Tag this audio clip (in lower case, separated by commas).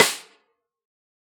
music, percussion, snare drum, drum, musical instrument